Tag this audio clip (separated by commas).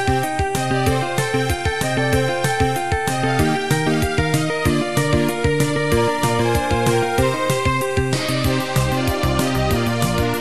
Music, Soul music